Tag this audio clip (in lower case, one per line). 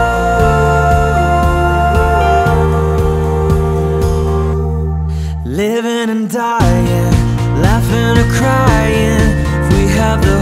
christian music
music